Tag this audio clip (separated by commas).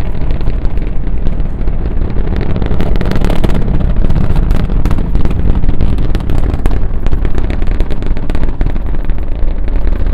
missile launch